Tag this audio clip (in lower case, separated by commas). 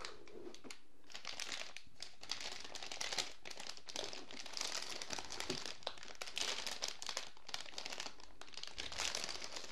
crumpling, inside a small room